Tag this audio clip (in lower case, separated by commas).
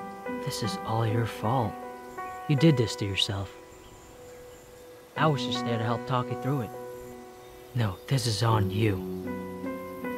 speech, music